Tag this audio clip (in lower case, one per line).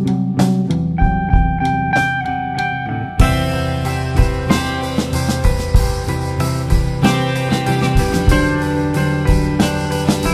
steel guitar
music